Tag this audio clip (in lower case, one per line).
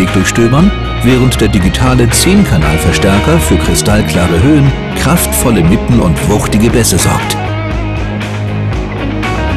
music
speech